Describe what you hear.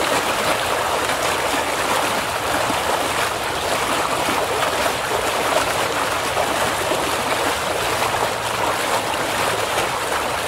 Water flows and splashes